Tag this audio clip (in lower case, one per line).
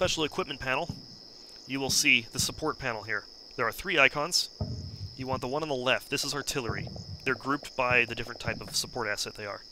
outside, rural or natural
speech